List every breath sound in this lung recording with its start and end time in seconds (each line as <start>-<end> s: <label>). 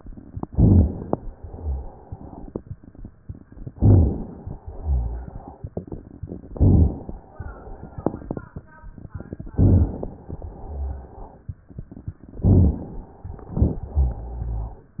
0.49-1.10 s: inhalation
0.49-1.10 s: crackles
1.52-1.94 s: exhalation
1.52-1.94 s: rhonchi
3.74-4.59 s: inhalation
3.74-4.59 s: crackles
4.78-5.31 s: exhalation
4.78-5.31 s: rhonchi
6.53-7.17 s: inhalation
6.53-7.17 s: crackles
9.56-10.11 s: inhalation
9.56-10.11 s: crackles
10.64-11.20 s: exhalation
10.64-11.20 s: rhonchi
12.41-13.09 s: inhalation
12.41-13.09 s: crackles
13.53-13.98 s: exhalation
13.53-14.78 s: rhonchi